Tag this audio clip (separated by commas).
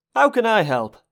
Male speech, Human voice, Speech